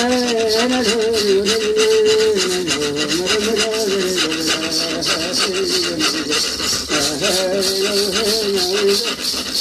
A person sings in the foreground as a string rubs against wood